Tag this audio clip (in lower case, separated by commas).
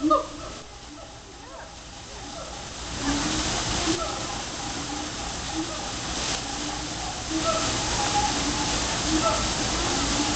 gibbon howling